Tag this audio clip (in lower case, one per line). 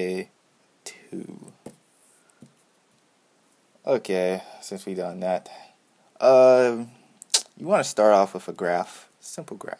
speech